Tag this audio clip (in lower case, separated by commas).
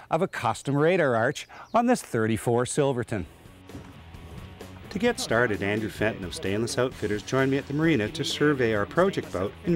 speech, music